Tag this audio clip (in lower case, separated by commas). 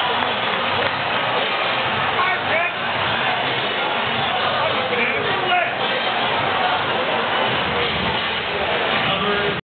speech